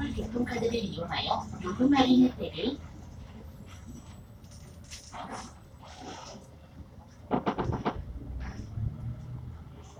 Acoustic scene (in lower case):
bus